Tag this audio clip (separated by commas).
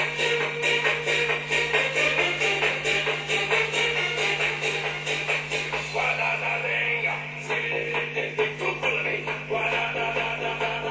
Music